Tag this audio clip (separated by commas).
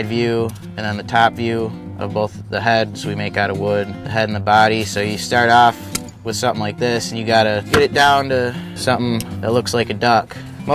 Music, Speech